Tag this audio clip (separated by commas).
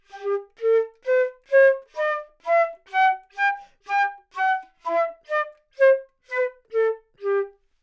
Music, Musical instrument, woodwind instrument